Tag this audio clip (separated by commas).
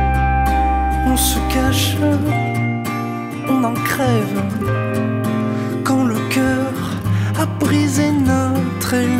Music